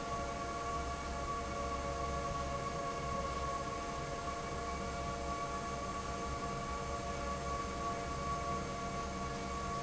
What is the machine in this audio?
fan